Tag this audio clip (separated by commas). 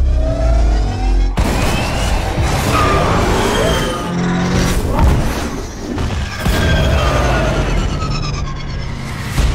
Music, Car passing by